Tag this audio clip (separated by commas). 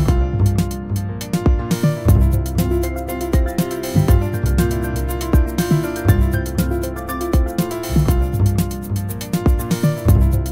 Music